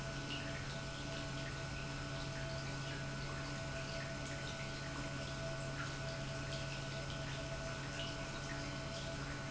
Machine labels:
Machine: pump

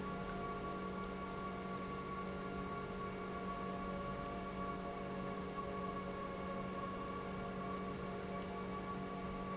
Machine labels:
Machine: pump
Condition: normal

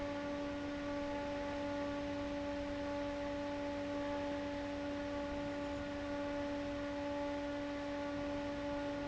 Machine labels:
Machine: fan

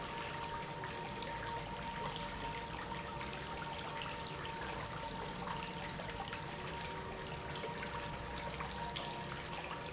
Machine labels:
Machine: pump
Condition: normal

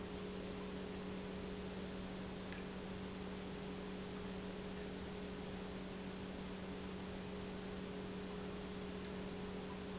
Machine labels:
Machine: pump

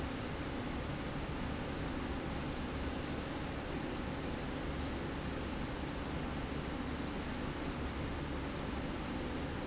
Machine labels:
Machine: slide rail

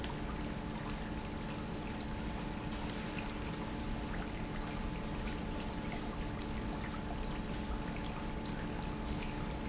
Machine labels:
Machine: pump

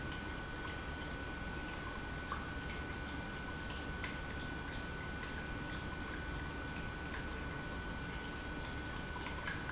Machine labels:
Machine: pump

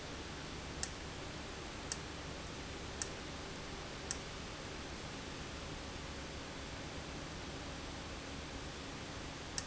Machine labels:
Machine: valve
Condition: abnormal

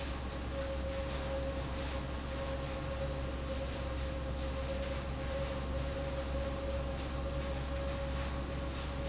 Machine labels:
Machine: fan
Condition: abnormal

